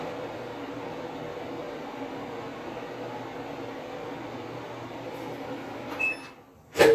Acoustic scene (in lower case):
kitchen